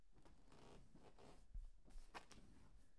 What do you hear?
wooden furniture moving